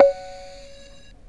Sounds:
Musical instrument, Music, Keyboard (musical)

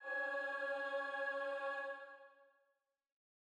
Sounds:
Musical instrument, Music, Human voice, Singing

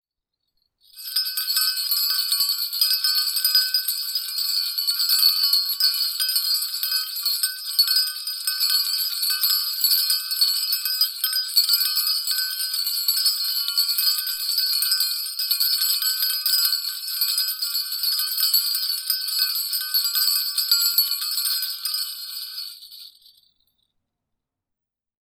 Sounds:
Bell

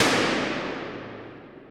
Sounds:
Gunshot, Explosion

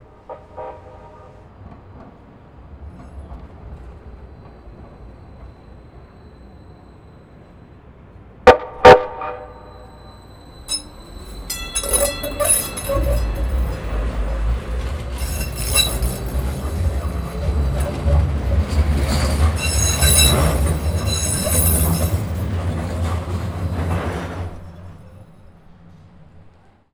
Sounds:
Train, Rail transport, Vehicle

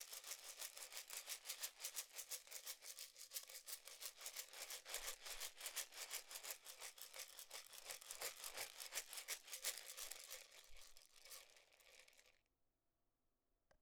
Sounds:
Musical instrument, Rattle (instrument), Percussion, Music

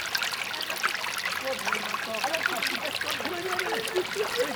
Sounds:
Stream, Water

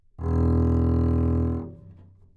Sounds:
Musical instrument, Bowed string instrument, Music

